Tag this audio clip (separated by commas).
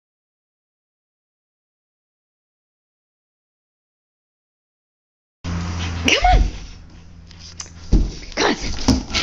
Dog, pets, Speech